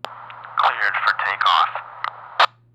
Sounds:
human voice
man speaking
speech

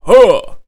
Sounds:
male speech
human voice
speech

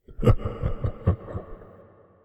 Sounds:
laughter
human voice

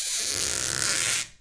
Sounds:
squeak

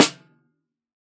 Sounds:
percussion
snare drum
musical instrument
drum
music

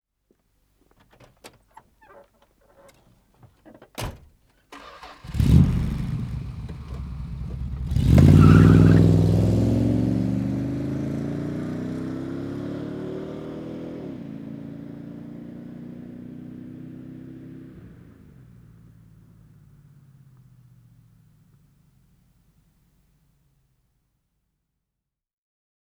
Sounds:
vehicle
motor vehicle (road)

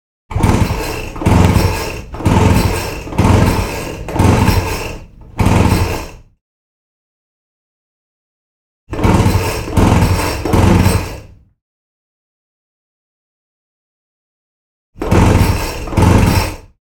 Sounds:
engine

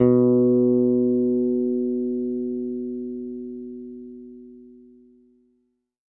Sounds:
music
guitar
musical instrument
bass guitar
plucked string instrument

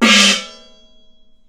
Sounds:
music
musical instrument
gong
percussion

